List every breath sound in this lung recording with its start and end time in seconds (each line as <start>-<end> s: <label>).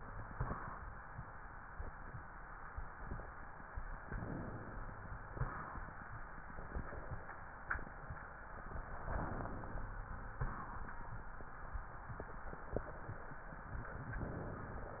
4.02-4.92 s: inhalation
5.35-5.91 s: exhalation
9.13-10.02 s: inhalation
10.40-10.96 s: exhalation
14.21-15.00 s: inhalation